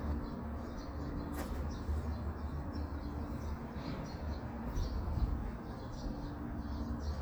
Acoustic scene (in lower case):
residential area